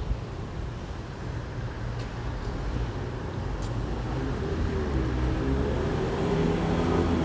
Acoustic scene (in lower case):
street